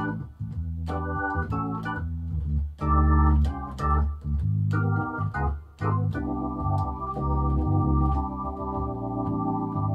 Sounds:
music

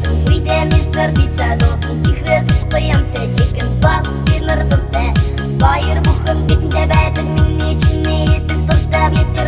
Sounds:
music

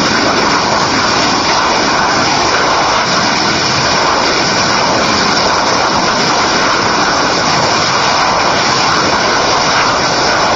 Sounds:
outside, rural or natural, vehicle

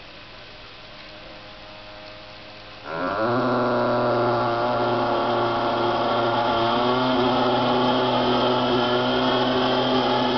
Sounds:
hum, mains hum

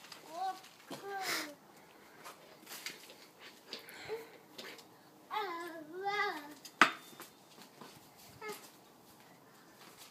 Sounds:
outside, rural or natural, speech

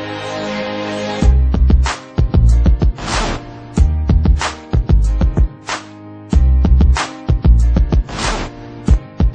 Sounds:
music

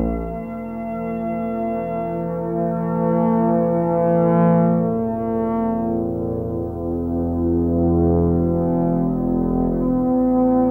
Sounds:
music

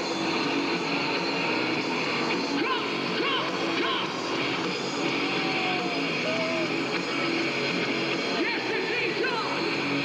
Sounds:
speech, music

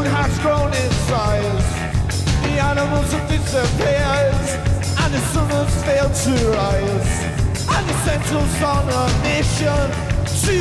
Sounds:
music

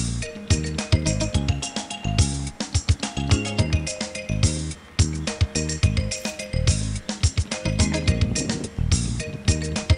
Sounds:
music

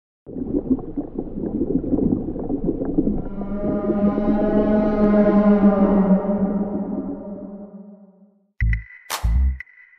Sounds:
music, whale vocalization

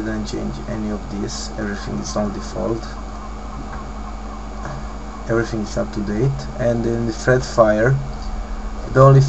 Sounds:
speech

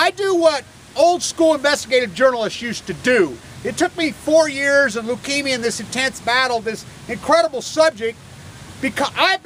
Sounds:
speech

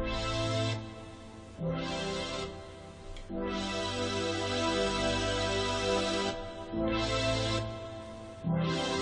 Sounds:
dubstep, electronic music, music

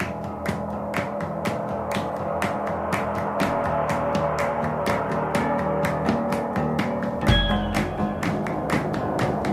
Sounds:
music

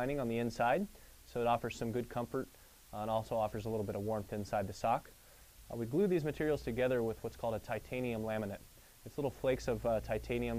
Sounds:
speech

